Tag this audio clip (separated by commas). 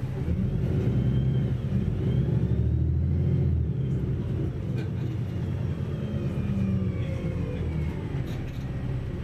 Vehicle, Bus